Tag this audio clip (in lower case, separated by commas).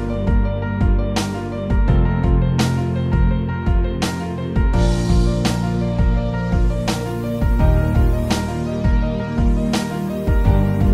music